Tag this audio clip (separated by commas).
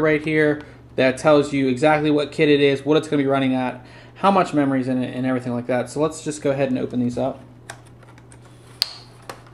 inside a small room, Speech